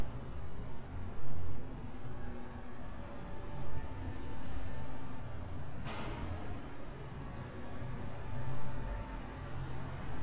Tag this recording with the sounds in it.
background noise